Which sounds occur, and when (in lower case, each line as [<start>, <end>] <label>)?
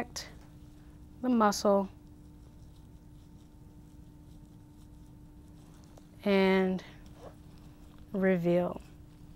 [0.00, 0.33] female speech
[0.00, 9.35] mechanisms
[0.35, 1.00] surface contact
[0.38, 0.47] tick
[1.18, 1.88] female speech
[1.97, 6.11] surface contact
[6.23, 6.80] female speech
[7.00, 8.07] surface contact
[8.13, 8.78] female speech
[8.69, 9.35] surface contact